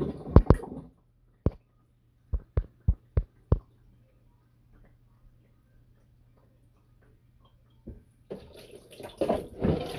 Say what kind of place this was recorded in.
kitchen